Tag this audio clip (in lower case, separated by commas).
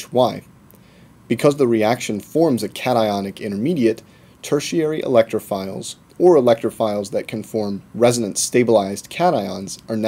speech